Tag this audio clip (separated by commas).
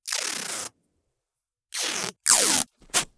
Domestic sounds, Packing tape